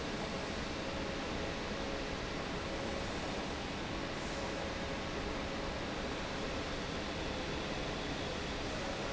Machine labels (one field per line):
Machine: fan